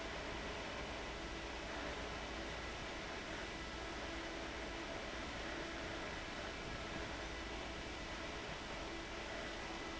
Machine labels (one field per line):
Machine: fan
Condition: abnormal